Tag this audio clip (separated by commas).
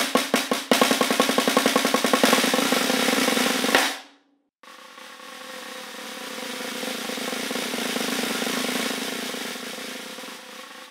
playing snare drum